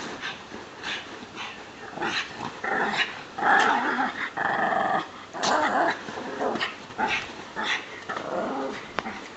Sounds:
Dog, Domestic animals, Animal

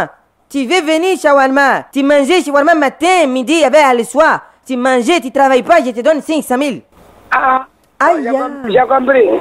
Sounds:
Speech

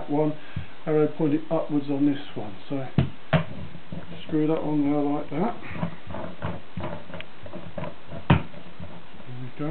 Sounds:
inside a small room, Speech

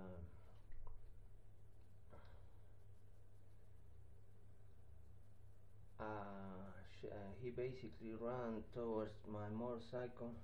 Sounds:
Speech

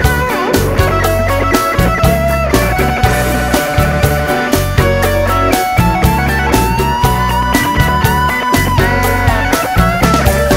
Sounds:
Psychedelic rock, Music

